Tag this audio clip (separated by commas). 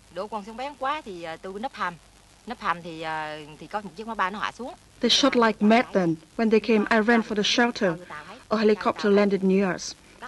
Speech